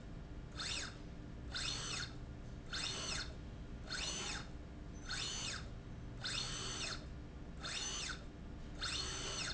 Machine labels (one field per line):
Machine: slide rail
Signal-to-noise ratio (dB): 6 dB